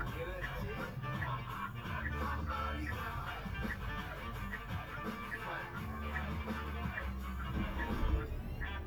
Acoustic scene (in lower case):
car